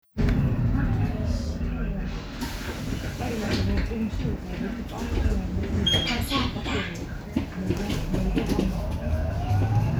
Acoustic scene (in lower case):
bus